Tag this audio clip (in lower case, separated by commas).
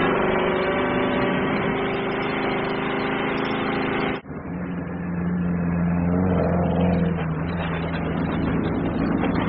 vehicle, truck